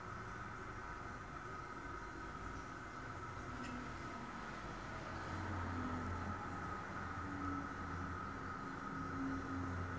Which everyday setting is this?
restroom